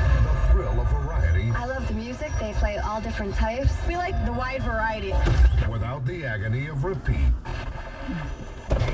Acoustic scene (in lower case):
car